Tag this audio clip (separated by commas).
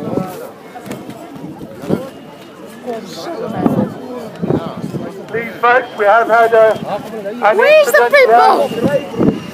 Speech